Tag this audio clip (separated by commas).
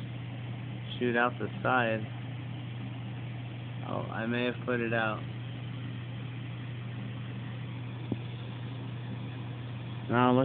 Speech